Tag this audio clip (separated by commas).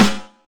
Percussion, Snare drum, Music, Drum, Musical instrument